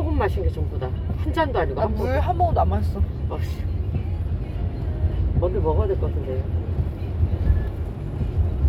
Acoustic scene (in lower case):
car